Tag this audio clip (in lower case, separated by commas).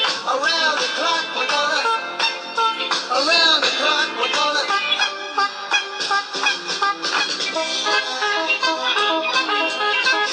music